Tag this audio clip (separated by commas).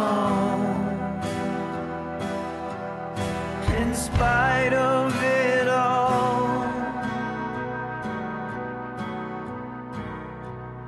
Music